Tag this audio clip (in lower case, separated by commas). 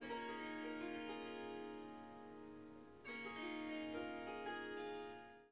harp, music, musical instrument